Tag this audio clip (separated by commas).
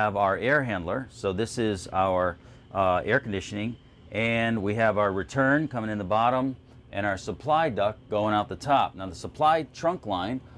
Speech